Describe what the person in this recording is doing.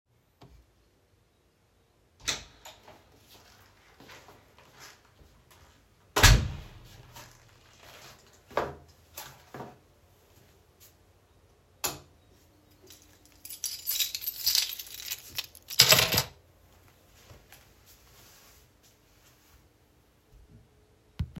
I opened the room door, took off slippers,turned on the light, and put the keys in keys box